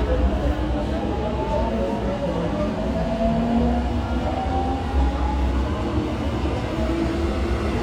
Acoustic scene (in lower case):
subway station